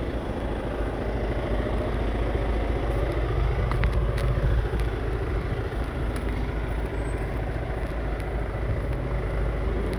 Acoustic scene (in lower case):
residential area